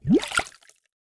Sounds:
Water, Gurgling

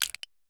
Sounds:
Crushing

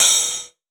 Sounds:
Music, Percussion, Hi-hat, Cymbal, Musical instrument

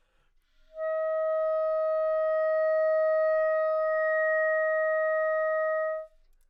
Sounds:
Music, woodwind instrument, Musical instrument

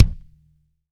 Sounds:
Percussion, Music, Musical instrument, Drum, Bass drum

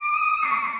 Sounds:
Screech

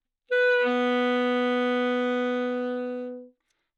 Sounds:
Musical instrument, Music, woodwind instrument

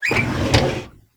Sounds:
Domestic sounds, Drawer open or close

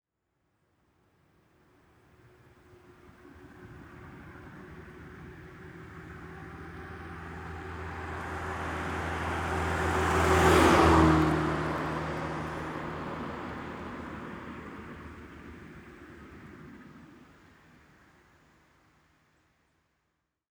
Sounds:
Car passing by, Motor vehicle (road), Car, Vehicle

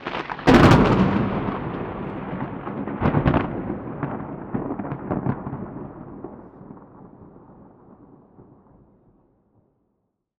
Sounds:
Thunder, Thunderstorm

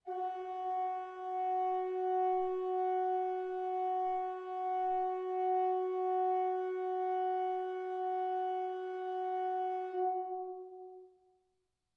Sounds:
Musical instrument, Organ, Music, Keyboard (musical)

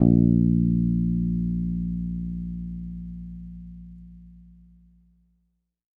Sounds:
Guitar, Plucked string instrument, Musical instrument, Bass guitar, Music

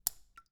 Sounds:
Raindrop, Water, Rain

